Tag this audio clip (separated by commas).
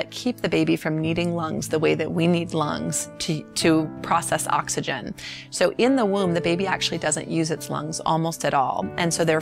Music, Speech